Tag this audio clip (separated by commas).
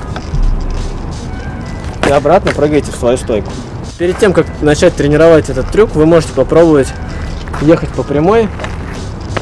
Music, Skateboard, Speech